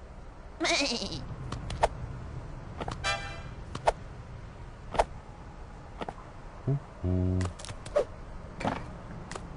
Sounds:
Sheep

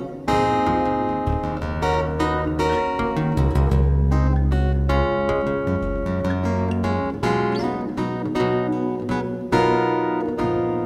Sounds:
Acoustic guitar, Music

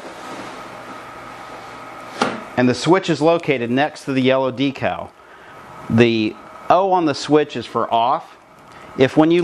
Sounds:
Speech

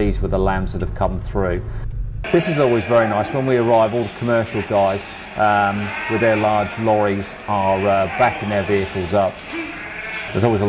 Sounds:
Bleat, Speech, Sheep

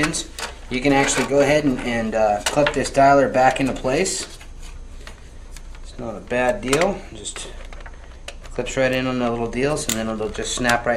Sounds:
Speech

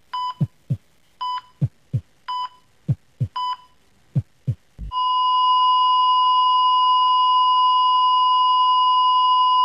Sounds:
Dial tone

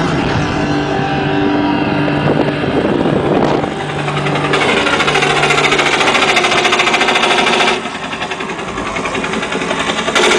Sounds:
Vehicle

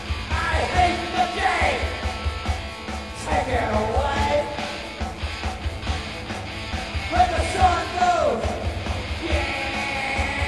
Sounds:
Singing, inside a large room or hall, Music

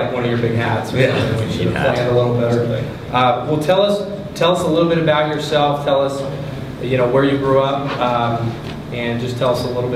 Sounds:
Speech

